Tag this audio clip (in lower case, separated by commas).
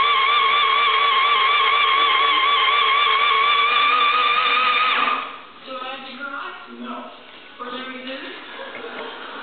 speech, engine